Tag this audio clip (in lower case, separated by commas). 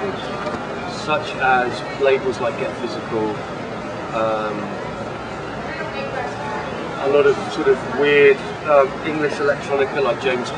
inside a public space, speech